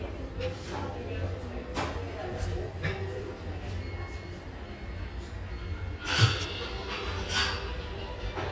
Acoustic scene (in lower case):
restaurant